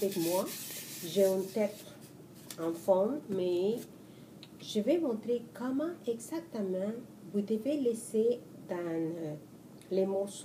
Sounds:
speech

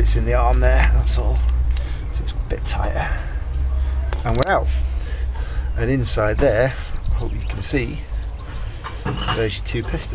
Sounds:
outside, urban or man-made
speech

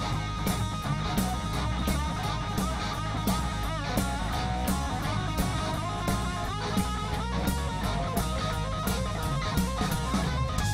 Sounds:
music

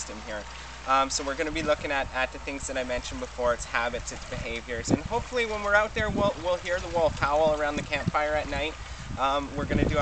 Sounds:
speech

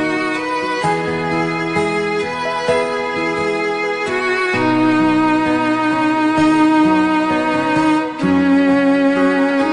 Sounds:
music

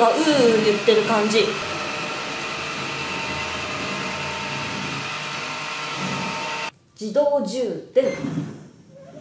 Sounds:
vacuum cleaner

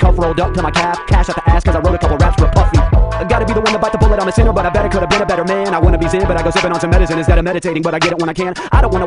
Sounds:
rapping

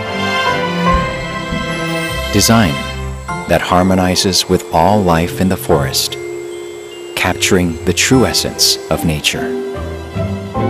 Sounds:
xylophone
mallet percussion
glockenspiel

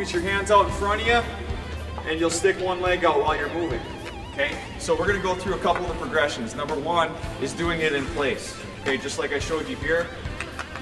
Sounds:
speech
music

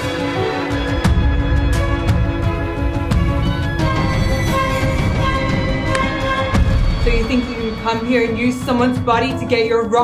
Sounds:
speech
music

